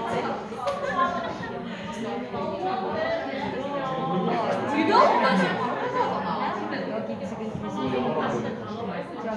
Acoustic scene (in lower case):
crowded indoor space